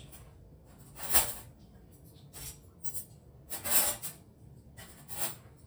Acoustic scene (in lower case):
kitchen